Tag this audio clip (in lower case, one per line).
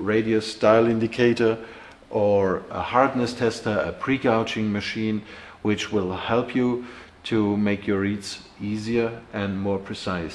speech